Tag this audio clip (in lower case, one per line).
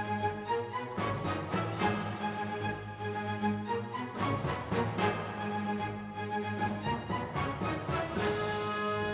music